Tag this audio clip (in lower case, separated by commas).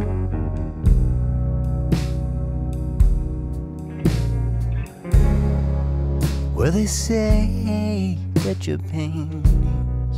music, bass guitar